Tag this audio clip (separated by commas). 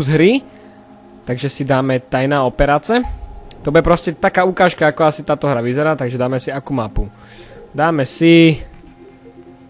Speech